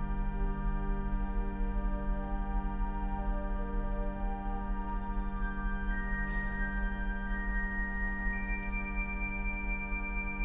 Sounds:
playing electronic organ

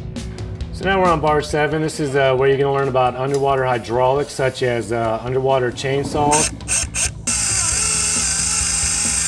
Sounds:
speech, dental drill, music

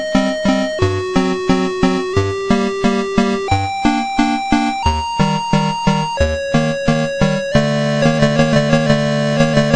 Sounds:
music

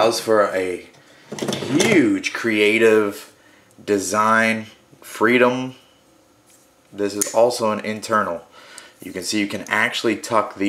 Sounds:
speech, wood

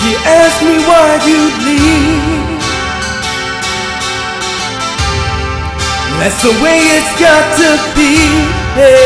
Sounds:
music

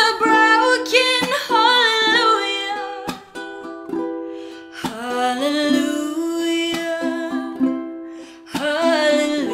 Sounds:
playing ukulele

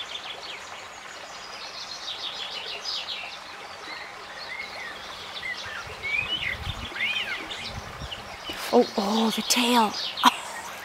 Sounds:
bird vocalization, speech, outside, rural or natural, bird

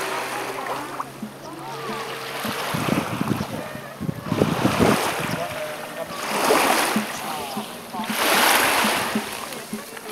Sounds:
speech, outside, rural or natural, music

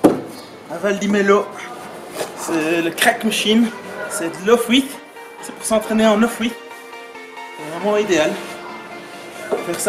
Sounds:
music, speech

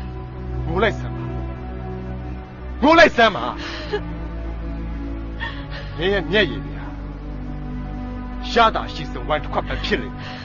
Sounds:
speech, music

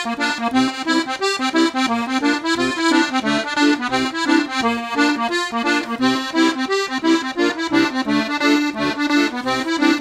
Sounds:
playing accordion

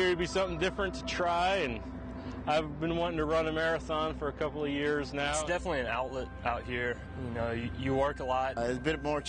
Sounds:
male speech, speech

